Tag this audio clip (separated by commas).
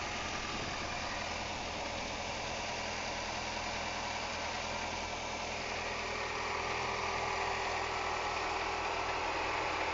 Idling, Medium engine (mid frequency), Car, Vehicle, Engine